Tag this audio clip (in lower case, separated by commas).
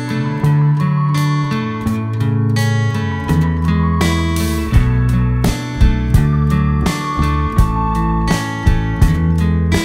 music